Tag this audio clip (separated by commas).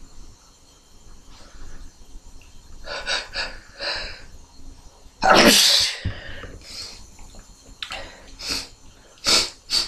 Sneeze, people sneezing